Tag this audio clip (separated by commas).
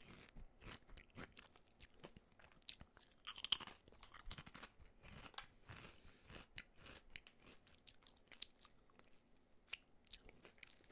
people eating crisps